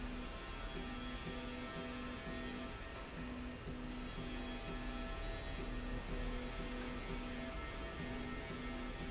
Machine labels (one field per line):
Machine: slide rail